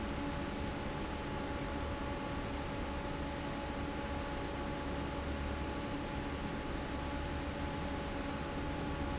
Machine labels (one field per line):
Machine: fan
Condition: normal